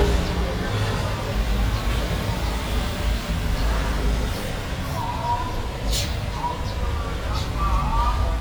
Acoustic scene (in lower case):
street